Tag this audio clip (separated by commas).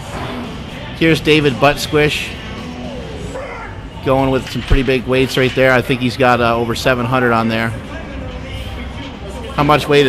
Speech